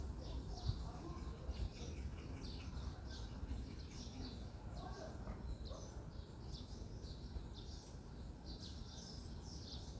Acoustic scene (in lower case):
residential area